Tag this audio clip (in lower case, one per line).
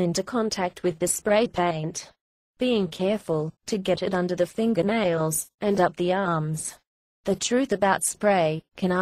speech